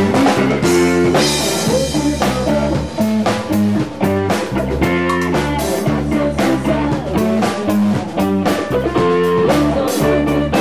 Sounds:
Music, Funk

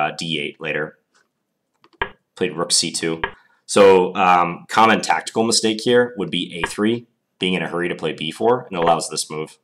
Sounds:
Speech

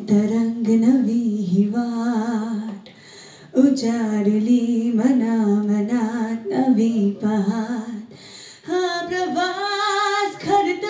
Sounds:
inside a small room

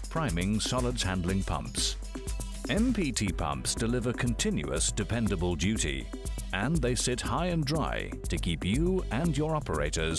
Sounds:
Music, Speech

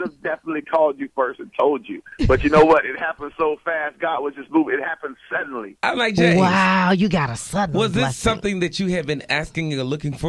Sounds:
Radio, Speech

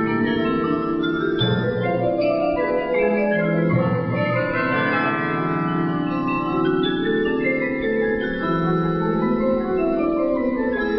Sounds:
xylophone, Mallet percussion, Glockenspiel

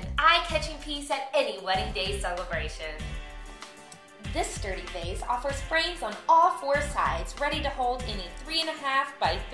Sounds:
Music, Speech

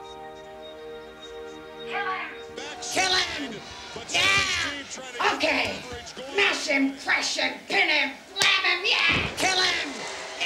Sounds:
Music, inside a large room or hall, inside a small room, Speech

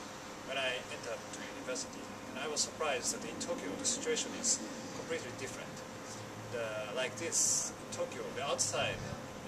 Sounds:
Speech

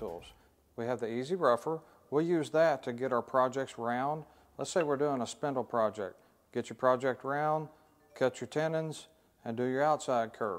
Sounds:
Speech

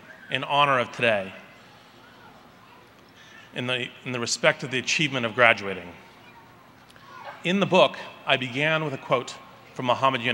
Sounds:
Speech, Male speech, monologue

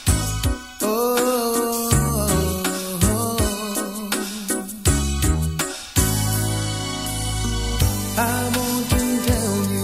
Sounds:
Music, Soul music

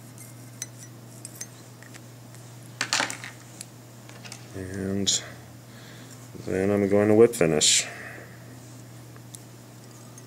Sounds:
Speech

